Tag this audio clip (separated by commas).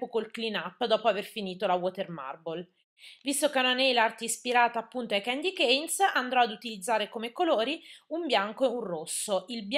Speech